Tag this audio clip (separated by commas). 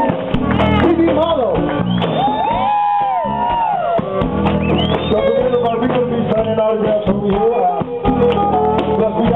Music, Speech